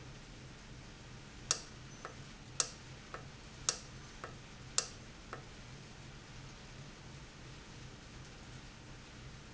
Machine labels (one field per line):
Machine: valve